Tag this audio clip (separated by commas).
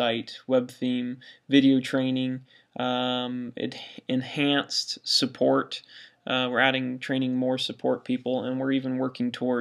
Speech